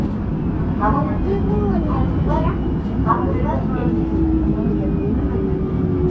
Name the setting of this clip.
subway train